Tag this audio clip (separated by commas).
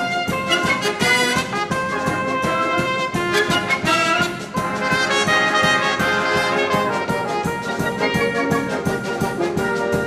playing trumpet, Brass instrument, Trumpet